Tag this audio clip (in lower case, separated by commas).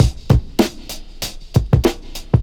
musical instrument, drum kit, percussion, music